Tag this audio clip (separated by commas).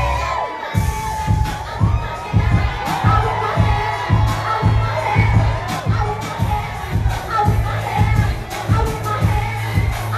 Music